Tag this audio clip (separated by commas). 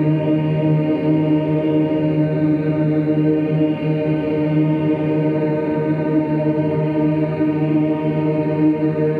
Music